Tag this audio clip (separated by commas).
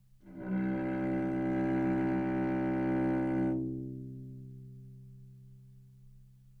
Musical instrument, Music, Bowed string instrument